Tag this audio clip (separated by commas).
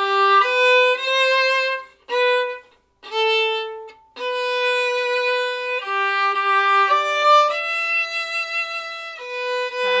Violin, Music, fiddle, Musical instrument